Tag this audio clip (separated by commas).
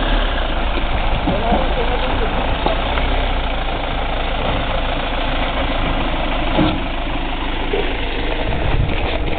Speech